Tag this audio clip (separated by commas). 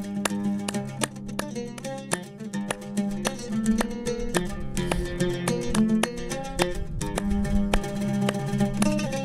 Music